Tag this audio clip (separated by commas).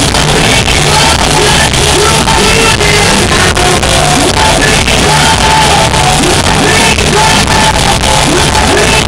Music